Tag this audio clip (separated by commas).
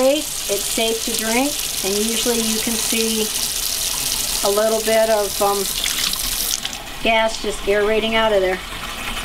Sink (filling or washing), faucet, Water